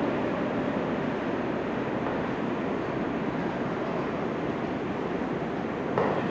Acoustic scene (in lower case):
subway station